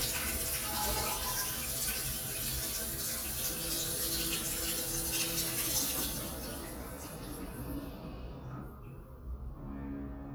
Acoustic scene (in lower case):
restroom